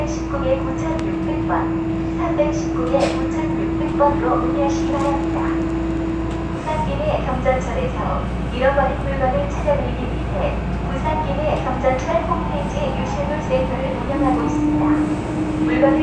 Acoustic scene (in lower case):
subway train